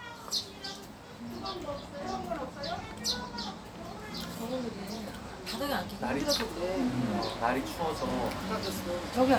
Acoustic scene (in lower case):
restaurant